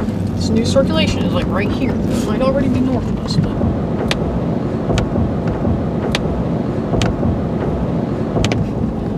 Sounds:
tornado roaring

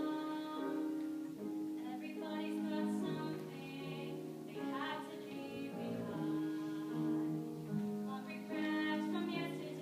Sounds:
tender music
music

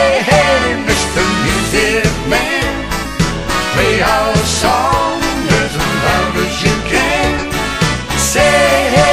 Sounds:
soundtrack music
music

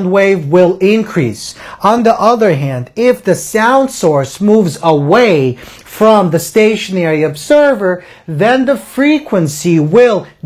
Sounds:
speech

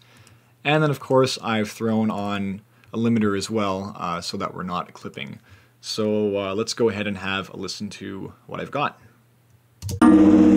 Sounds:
speech

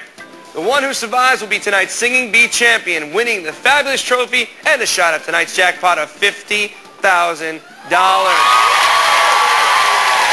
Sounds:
speech
music

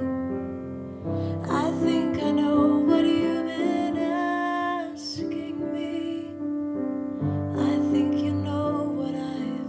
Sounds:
lullaby
music

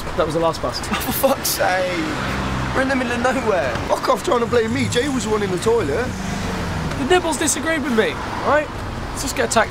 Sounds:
speech
vehicle

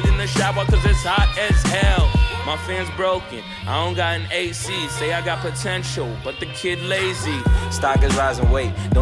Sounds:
rapping

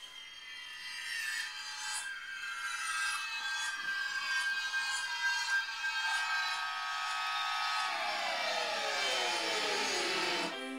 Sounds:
music
musical instrument

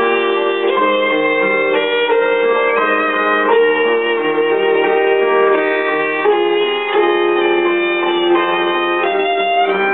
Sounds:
musical instrument
violin
music

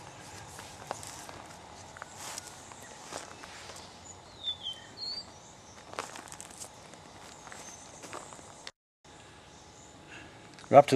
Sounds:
bird

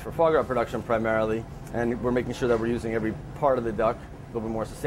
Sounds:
speech

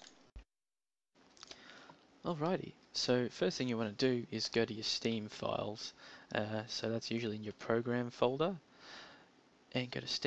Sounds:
speech

